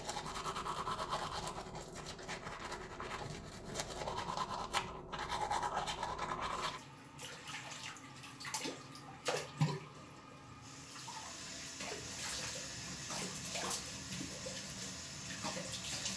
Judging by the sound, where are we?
in a restroom